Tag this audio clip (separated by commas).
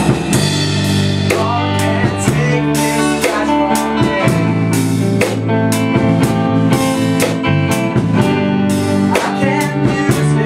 Music